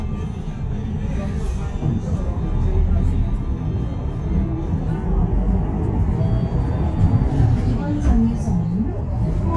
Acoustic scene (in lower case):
bus